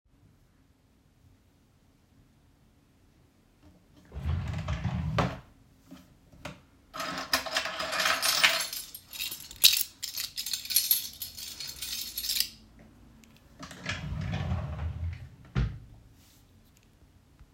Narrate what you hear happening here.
I opened a drawer, took out my keychain and then closed the drawer again.